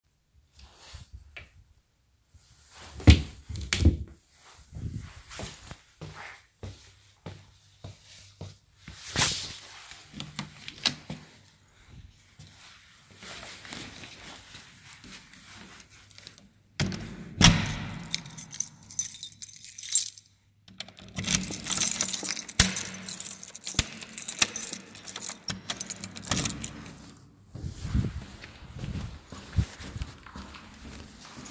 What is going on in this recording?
I closed the wardrobe opened the door, locked it and went out